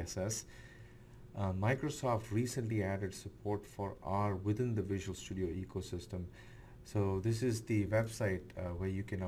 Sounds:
Speech

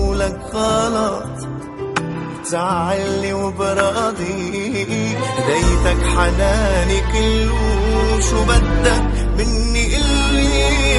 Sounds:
Music

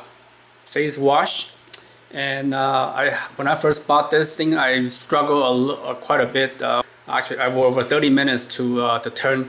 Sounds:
Speech

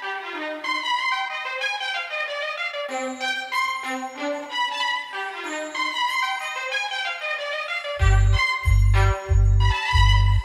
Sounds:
Music

